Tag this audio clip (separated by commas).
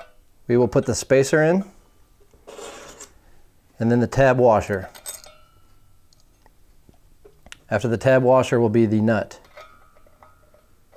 Speech